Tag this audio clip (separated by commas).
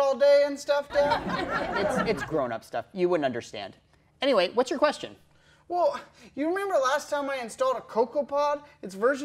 Speech